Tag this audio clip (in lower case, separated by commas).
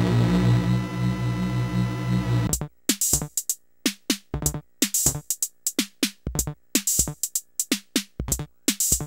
music